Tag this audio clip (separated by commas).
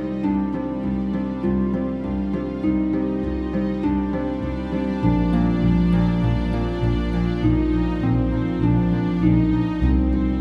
Music, Tender music, Theme music